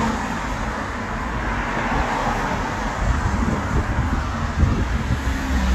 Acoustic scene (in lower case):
street